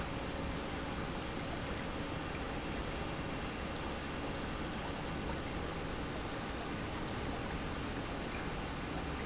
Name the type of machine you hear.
pump